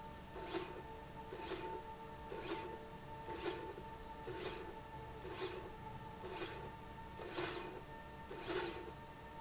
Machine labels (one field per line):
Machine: slide rail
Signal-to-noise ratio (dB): 6 dB